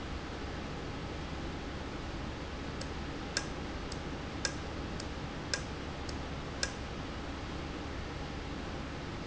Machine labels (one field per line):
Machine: valve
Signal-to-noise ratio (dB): -6 dB